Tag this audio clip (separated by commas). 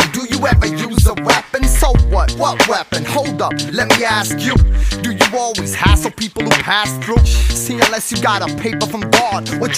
Music